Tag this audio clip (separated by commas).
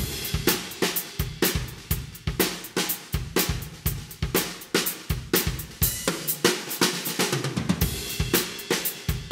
Bass drum, Drum, Drum kit, Snare drum, Rimshot, Drum roll, Percussion